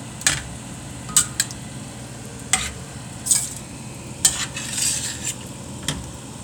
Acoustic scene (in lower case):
kitchen